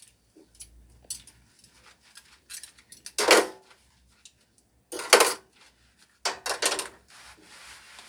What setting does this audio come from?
kitchen